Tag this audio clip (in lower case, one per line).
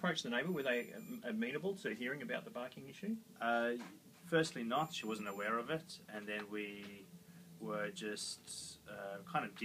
speech